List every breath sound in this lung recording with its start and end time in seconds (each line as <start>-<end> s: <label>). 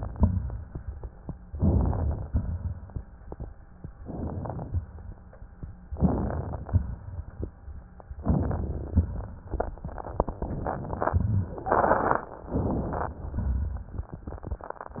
0.00-0.71 s: exhalation
0.00-0.71 s: crackles
1.54-2.26 s: inhalation
2.29-3.01 s: exhalation
4.01-4.78 s: inhalation
4.78-5.50 s: exhalation
5.92-6.69 s: inhalation
5.92-6.69 s: crackles
6.69-7.46 s: exhalation
8.23-9.04 s: inhalation
8.23-9.04 s: crackles
9.02-9.84 s: exhalation
10.37-11.19 s: inhalation
10.37-11.19 s: crackles
11.18-11.78 s: exhalation
12.48-13.17 s: inhalation
12.48-13.17 s: crackles
13.17-14.06 s: exhalation
14.19-15.00 s: inhalation
14.98-15.00 s: exhalation